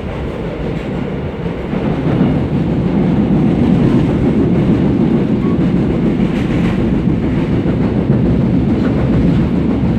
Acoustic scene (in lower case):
subway train